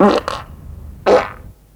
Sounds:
Fart

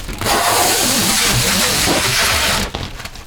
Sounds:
Domestic sounds, duct tape

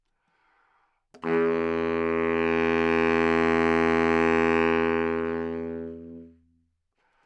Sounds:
Wind instrument, Musical instrument, Music

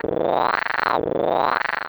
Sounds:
Animal

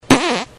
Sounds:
Fart

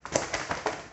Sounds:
Wild animals, Animal, Bird

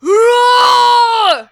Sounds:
Human voice, Yell, Shout

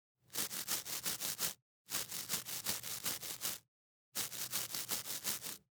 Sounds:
home sounds

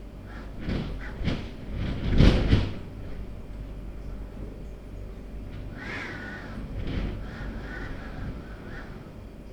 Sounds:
Wind

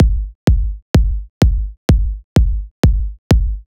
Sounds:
Percussion, Music, Bass drum, Musical instrument, Drum

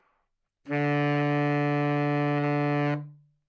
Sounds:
Music, woodwind instrument, Musical instrument

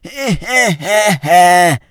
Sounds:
Human voice, Laughter

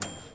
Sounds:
Domestic sounds, Microwave oven

